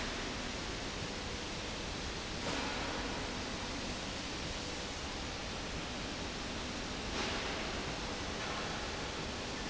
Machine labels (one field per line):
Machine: slide rail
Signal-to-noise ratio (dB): -6 dB